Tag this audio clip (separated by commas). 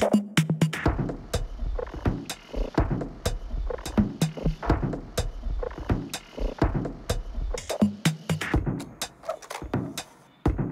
Music, Soundtrack music